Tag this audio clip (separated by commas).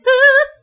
Singing, Human voice